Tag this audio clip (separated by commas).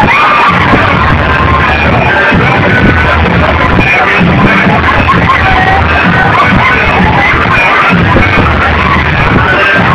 Music, Shuffle, people shuffling